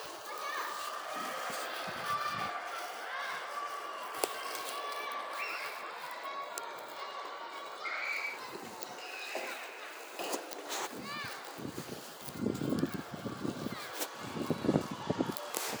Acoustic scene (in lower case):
residential area